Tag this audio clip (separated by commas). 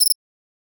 Wild animals, Cricket, Insect, Animal